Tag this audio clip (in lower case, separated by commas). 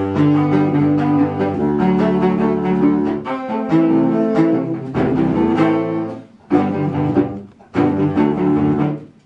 music